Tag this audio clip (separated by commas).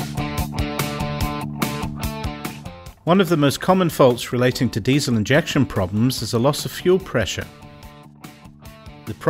Speech, Music